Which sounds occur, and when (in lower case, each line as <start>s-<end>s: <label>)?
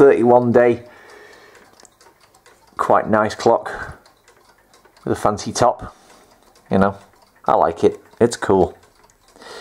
0.0s-0.8s: male speech
0.0s-9.6s: background noise
0.3s-0.5s: tick
0.7s-1.6s: breathing
0.8s-0.9s: tick
1.0s-1.1s: tick
1.2s-1.3s: tick
1.4s-1.5s: tick
1.7s-1.8s: tick
1.9s-2.1s: tick
2.2s-2.3s: tick
2.4s-2.5s: tick
2.6s-2.7s: tick
2.8s-3.9s: male speech
3.1s-3.2s: tick
3.6s-3.9s: breathing
3.8s-3.9s: wind noise (microphone)
4.0s-4.0s: tick
4.2s-4.3s: tick
4.4s-4.5s: tick
4.7s-4.8s: tick
4.9s-5.0s: tick
5.0s-5.9s: male speech
5.7s-5.9s: wind noise (microphone)
5.8s-6.3s: breathing
6.2s-6.5s: tick
6.7s-6.9s: male speech
6.9s-7.3s: tick
7.4s-7.9s: male speech
7.9s-7.9s: tick
8.1s-8.3s: tick
8.1s-8.7s: male speech
8.5s-8.6s: tick
8.8s-9.1s: tick
9.2s-9.3s: tick